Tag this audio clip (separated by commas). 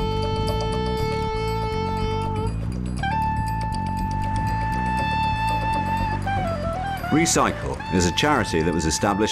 Music, Speech